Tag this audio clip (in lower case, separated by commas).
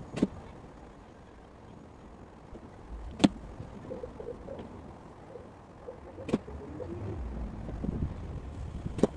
wind noise (microphone), arrow